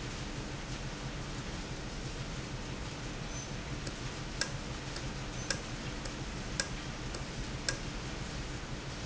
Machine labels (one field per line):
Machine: valve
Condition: normal